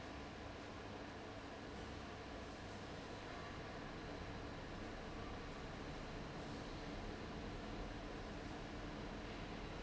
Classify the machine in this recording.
fan